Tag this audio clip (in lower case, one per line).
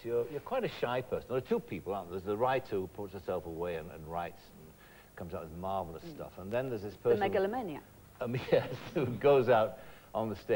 speech